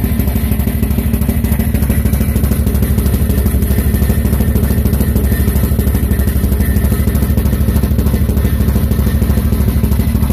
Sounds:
vehicle

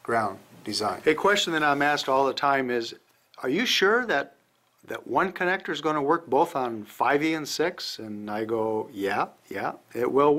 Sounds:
speech

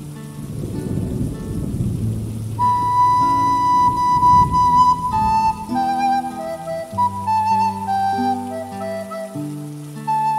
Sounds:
playing flute

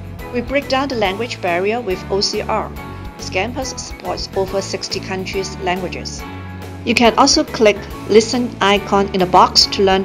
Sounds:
speech, music

